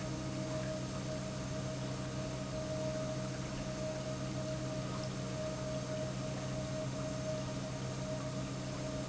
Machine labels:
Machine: pump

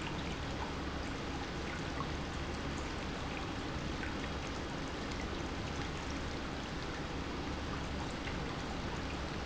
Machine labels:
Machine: pump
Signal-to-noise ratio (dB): -6 dB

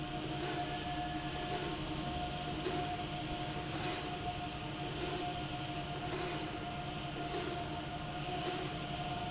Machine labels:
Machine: slide rail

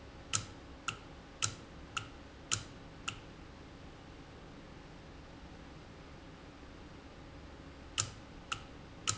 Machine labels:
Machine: valve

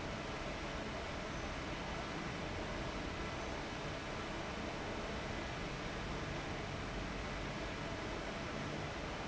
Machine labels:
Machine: fan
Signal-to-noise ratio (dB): 0 dB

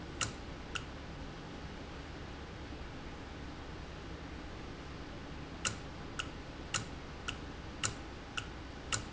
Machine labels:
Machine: valve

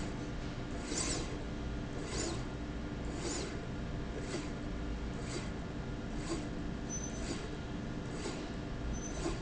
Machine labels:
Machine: slide rail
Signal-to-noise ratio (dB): -6 dB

